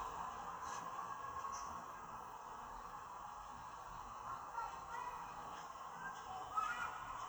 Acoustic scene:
park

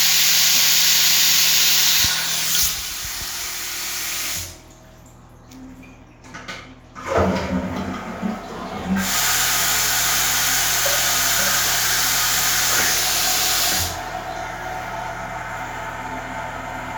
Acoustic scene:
restroom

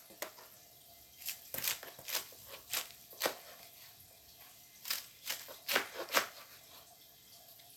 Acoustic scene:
kitchen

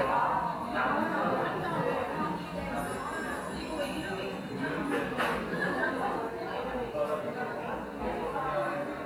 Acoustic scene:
cafe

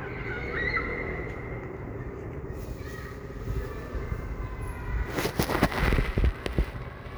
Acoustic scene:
residential area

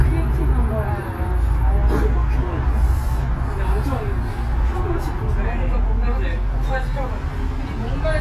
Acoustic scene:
bus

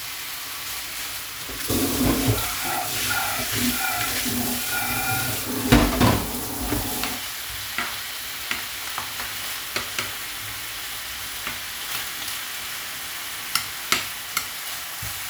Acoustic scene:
kitchen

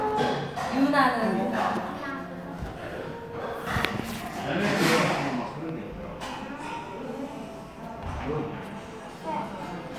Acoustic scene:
crowded indoor space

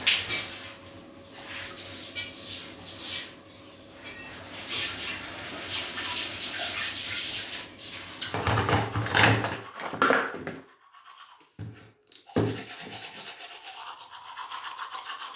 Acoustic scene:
restroom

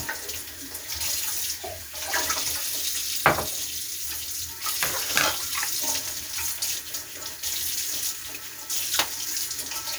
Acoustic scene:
kitchen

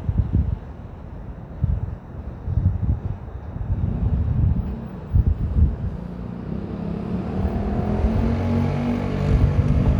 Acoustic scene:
street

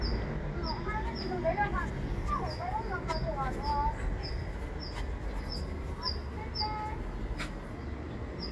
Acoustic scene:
residential area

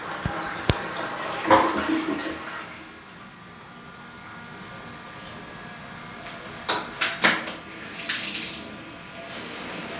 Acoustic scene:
restroom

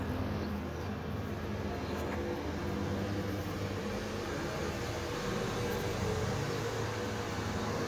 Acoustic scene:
residential area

